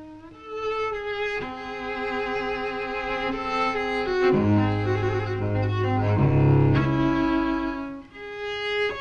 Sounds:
Cello, Bowed string instrument, Double bass

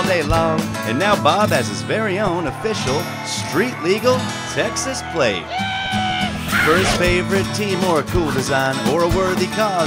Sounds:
Speech, Music

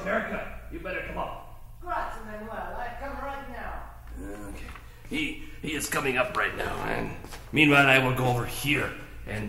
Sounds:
Speech

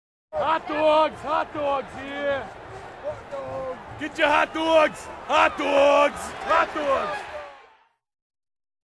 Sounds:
Speech

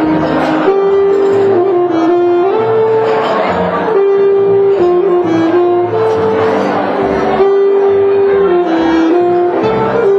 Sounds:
Music

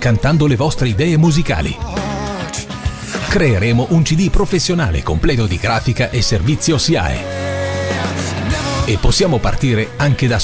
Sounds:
Speech, Music

